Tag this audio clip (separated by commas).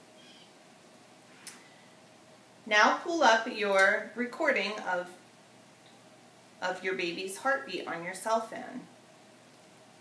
Speech